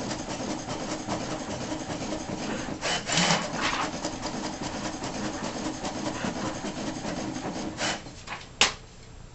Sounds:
printer
printer printing

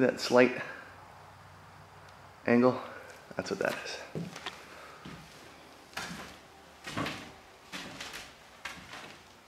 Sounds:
speech

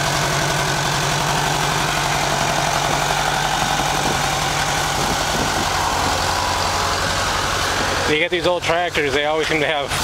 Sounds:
vehicle
speech

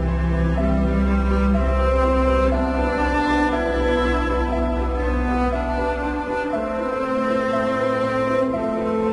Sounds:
music

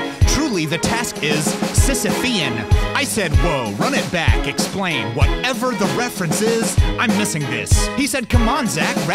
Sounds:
music
speech

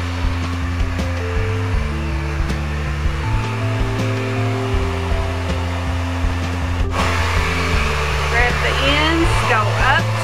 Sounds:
inside a small room
speech
music

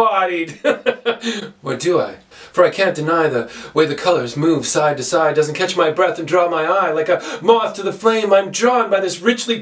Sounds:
speech

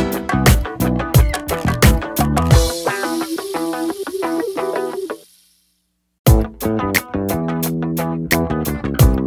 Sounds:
music

